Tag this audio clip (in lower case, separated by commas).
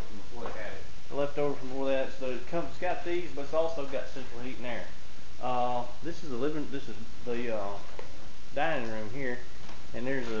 speech